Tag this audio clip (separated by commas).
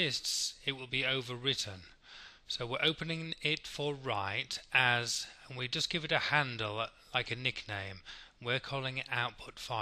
Speech